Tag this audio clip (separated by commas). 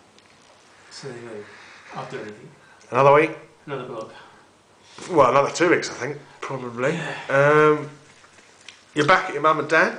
inside a small room, Speech